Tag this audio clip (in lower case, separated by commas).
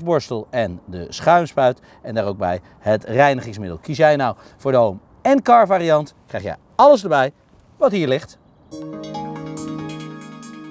speech, music